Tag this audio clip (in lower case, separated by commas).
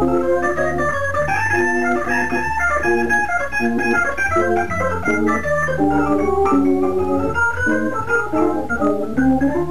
electronic organ, playing electronic organ, organ, keyboard (musical)